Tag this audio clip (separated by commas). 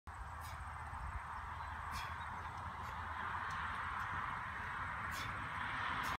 Walk